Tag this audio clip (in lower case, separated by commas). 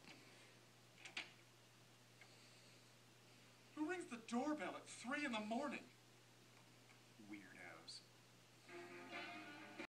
speech, music